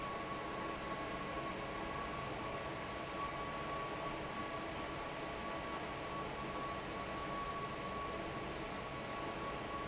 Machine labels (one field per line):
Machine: fan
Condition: normal